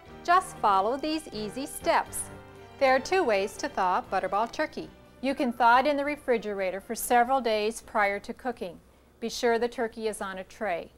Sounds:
Music, Speech

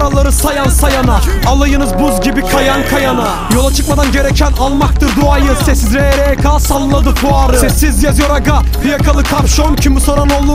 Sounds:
Music

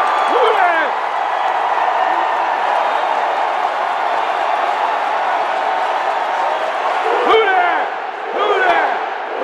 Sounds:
Speech

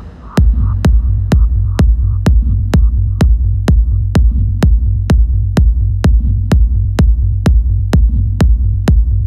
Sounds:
Music, Background music

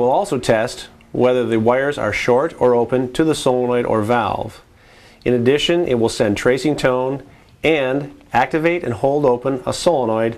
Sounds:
Speech

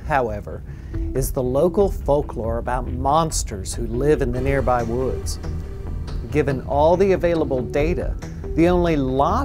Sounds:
Music, Speech

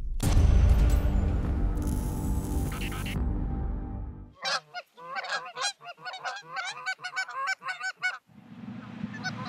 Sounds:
Music, Honk, goose honking

